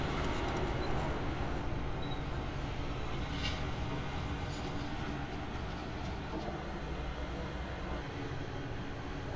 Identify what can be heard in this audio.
non-machinery impact